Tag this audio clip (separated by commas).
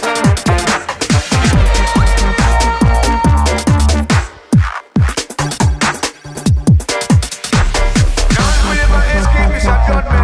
Reggae, Music, Electronica